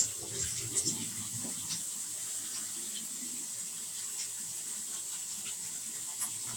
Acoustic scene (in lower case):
kitchen